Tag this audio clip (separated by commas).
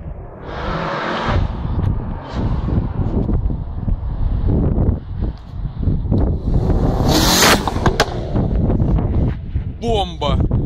Speech